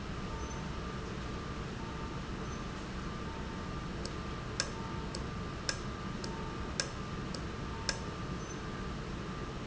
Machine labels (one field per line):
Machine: valve